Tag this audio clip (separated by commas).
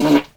Fart